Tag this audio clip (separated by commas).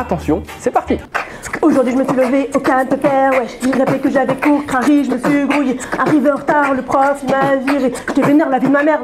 Speech, Music